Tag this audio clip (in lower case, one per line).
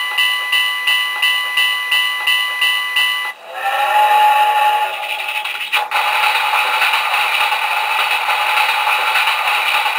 tick-tock